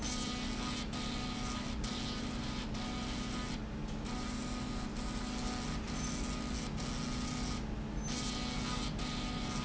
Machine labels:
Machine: slide rail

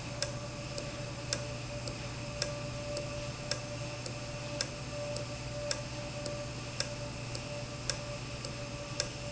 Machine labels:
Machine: valve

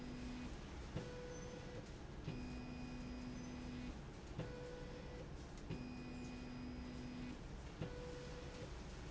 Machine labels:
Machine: slide rail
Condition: normal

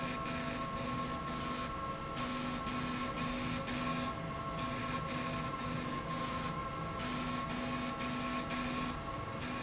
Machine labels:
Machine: slide rail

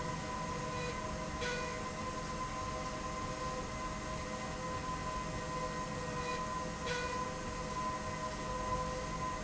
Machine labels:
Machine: slide rail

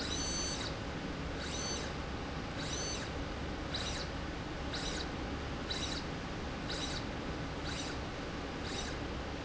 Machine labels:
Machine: slide rail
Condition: abnormal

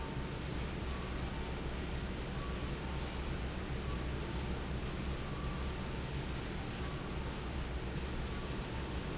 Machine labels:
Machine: fan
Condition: normal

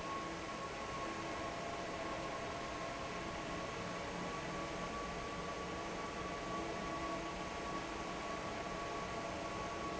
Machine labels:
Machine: fan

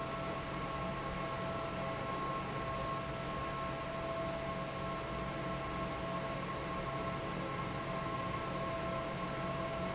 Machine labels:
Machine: fan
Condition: normal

